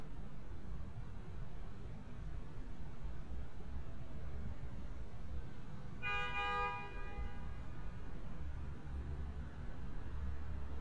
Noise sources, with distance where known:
car horn, near

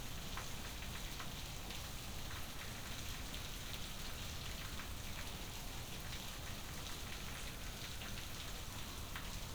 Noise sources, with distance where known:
background noise

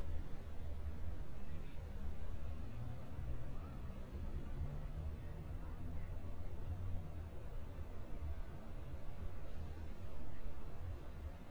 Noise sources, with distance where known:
medium-sounding engine, far
person or small group talking

